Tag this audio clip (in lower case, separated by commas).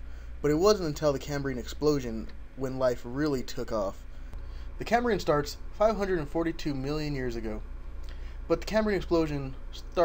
speech